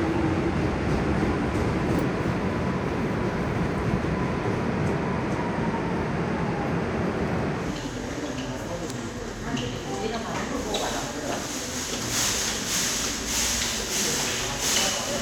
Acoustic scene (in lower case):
subway station